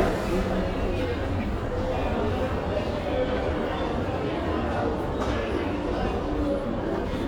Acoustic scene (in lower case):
crowded indoor space